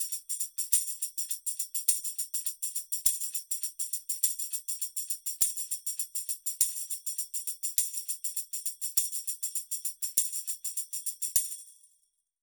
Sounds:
Percussion, Musical instrument, Music, Tambourine

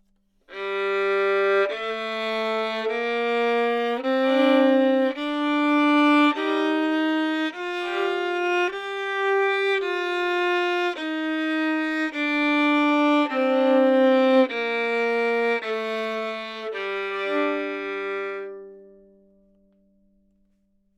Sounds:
Musical instrument, Music, Bowed string instrument

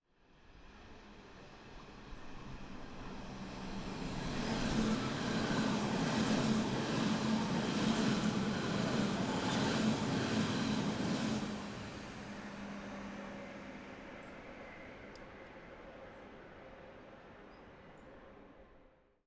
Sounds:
Vehicle, Train, Rail transport

